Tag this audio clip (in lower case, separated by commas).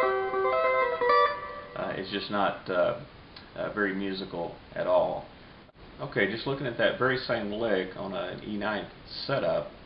speech, music